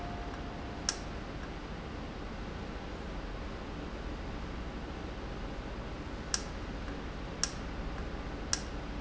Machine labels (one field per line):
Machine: valve